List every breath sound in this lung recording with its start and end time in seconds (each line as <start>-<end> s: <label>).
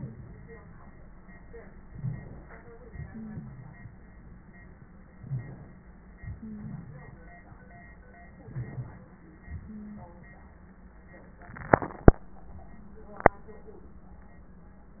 1.94-2.60 s: inhalation
2.87-4.90 s: exhalation
3.12-3.75 s: wheeze
5.20-5.86 s: inhalation
5.28-5.43 s: wheeze
6.19-8.06 s: exhalation
6.39-6.74 s: wheeze
8.44-9.11 s: inhalation
9.41-10.85 s: exhalation
9.65-10.05 s: wheeze